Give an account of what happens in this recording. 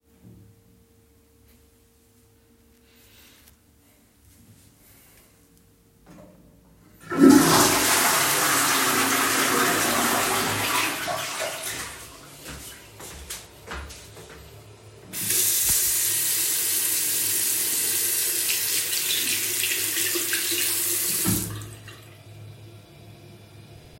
After using the toilet, I pressed the lever to flush it. I then walked over to the sink and washed my hands.